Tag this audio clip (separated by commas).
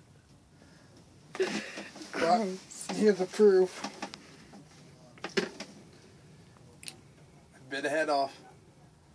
Speech